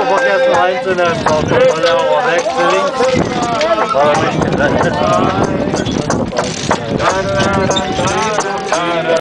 People speak, singing in the distance, horses clip-clop